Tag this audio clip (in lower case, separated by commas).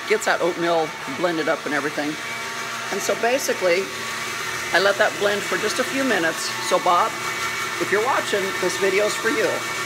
speech, inside a small room